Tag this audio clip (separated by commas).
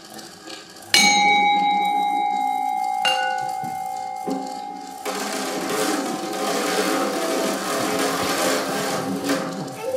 Musical instrument, Music, Percussion